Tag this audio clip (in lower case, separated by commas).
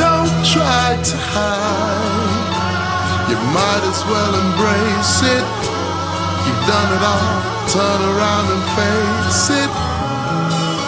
electronica, music